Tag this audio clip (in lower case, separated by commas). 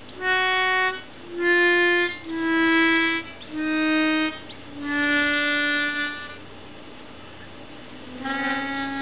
harmonica, music